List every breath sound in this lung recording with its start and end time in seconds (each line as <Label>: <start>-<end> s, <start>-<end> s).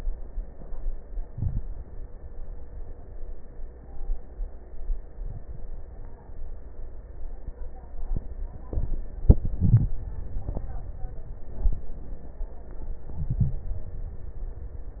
Inhalation: 1.27-1.64 s, 9.60-9.97 s, 13.11-13.69 s